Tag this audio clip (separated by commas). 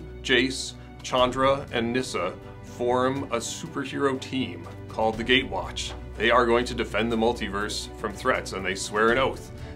Music, Speech